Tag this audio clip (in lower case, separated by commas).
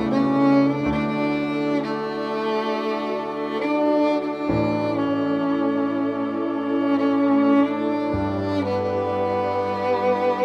musical instrument, bowed string instrument, violin, cello, playing cello, music